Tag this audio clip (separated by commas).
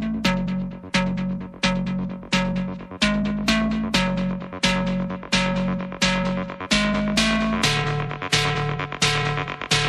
Music